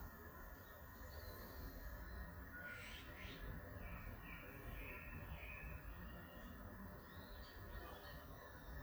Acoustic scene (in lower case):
park